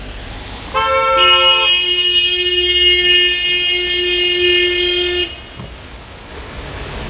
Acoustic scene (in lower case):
street